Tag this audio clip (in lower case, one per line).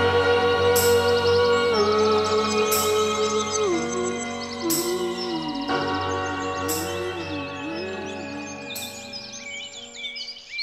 music